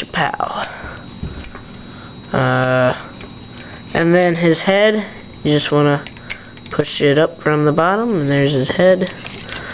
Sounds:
inside a small room, Speech

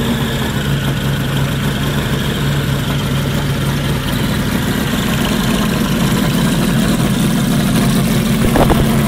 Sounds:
Vehicle

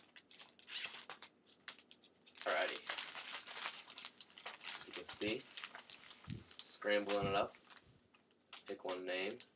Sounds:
Speech

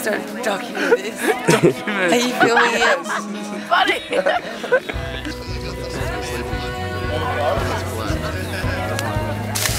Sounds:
Music

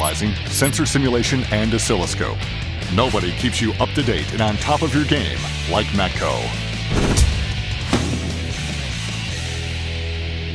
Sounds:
Music, Speech

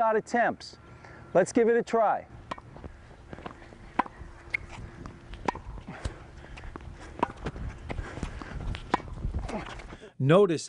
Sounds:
playing tennis

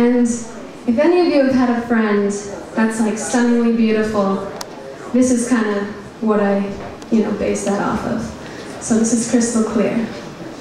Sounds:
Speech

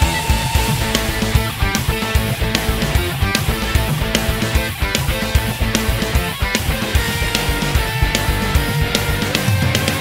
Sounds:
Soundtrack music, Music

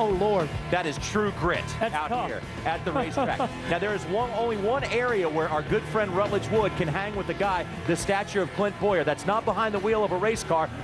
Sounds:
Speech, Music

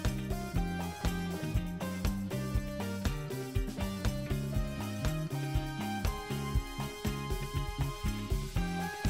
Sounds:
Music

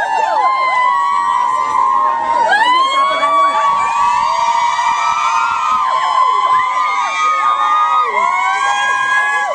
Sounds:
Speech

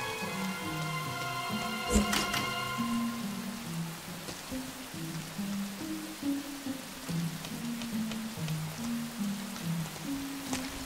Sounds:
Music, Vibraphone

